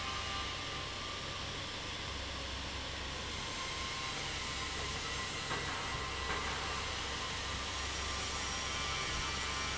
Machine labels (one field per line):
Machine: fan